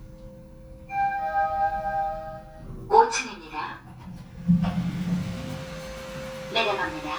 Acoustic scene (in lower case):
elevator